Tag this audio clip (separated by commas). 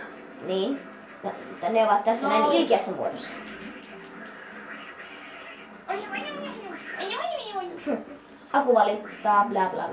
Speech, Music